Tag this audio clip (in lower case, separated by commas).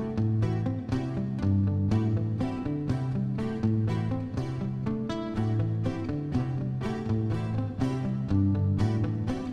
music